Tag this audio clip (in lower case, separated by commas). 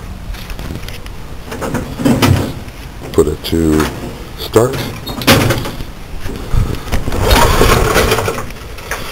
engine, speech